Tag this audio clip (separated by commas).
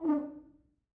Music, Musical instrument, Brass instrument